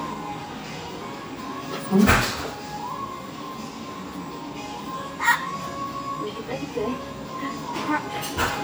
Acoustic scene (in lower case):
restaurant